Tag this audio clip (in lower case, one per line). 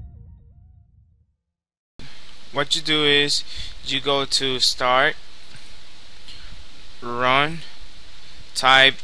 speech